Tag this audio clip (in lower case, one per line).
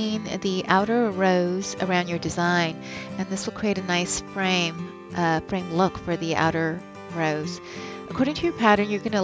speech
music